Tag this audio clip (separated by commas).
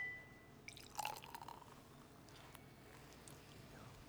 Liquid